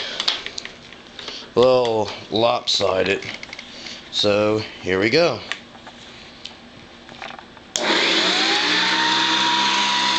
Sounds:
speech, vacuum cleaner

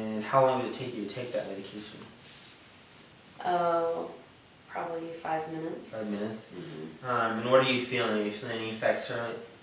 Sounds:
inside a small room, speech

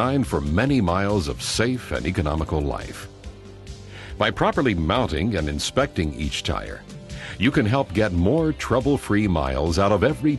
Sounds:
speech, music

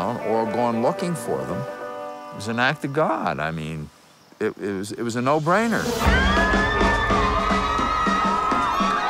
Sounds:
music, speech

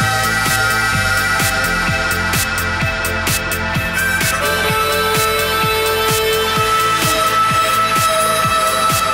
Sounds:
music

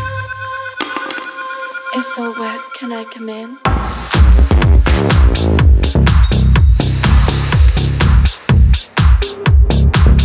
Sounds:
speech, music

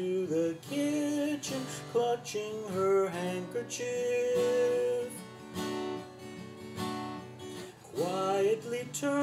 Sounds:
music, musical instrument, guitar, strum

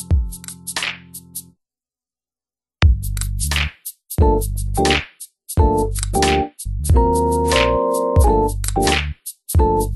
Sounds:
electric piano, piano, musical instrument, music, keyboard (musical)

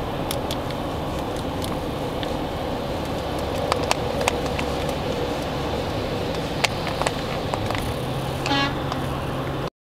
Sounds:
vehicle

